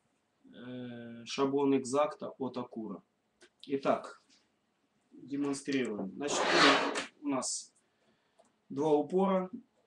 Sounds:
speech

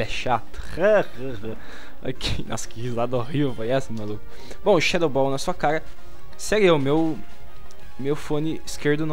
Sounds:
speech, music

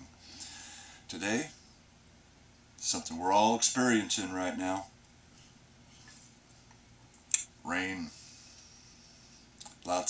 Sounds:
speech

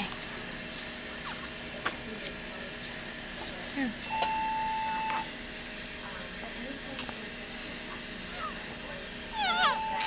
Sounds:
speech

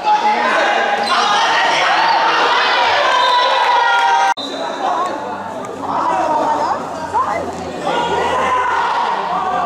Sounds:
inside a public space, speech, inside a large room or hall

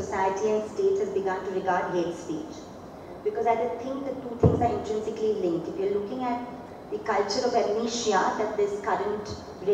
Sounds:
female speech, speech, monologue

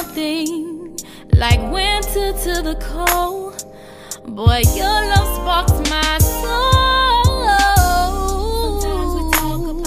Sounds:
music

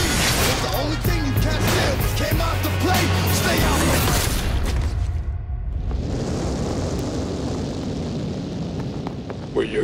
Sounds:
music, speech

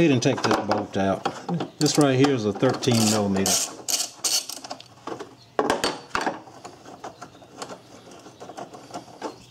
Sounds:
inside a small room, speech

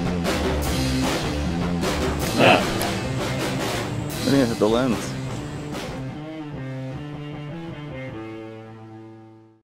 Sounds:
music, speech

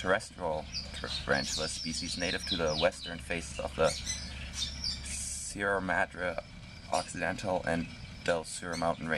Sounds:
chirp, animal, outside, rural or natural, speech

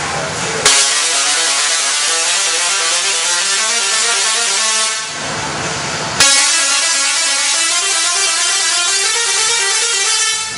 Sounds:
music

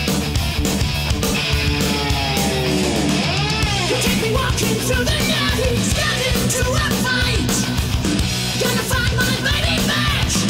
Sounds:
heavy metal, rock music, music, punk rock

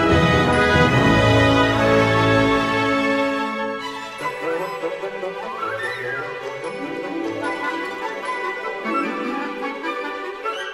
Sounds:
music

